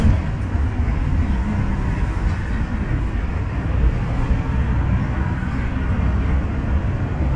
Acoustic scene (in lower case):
bus